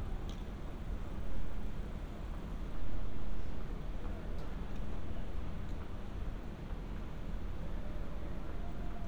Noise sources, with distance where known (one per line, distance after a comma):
background noise